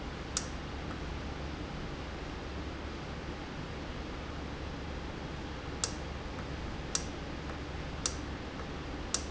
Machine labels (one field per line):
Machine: valve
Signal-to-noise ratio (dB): -6 dB